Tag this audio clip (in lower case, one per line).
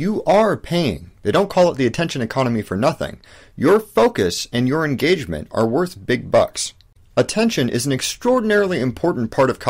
speech